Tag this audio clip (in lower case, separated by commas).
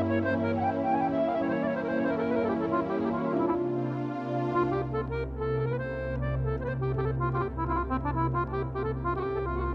musical instrument, music, accordion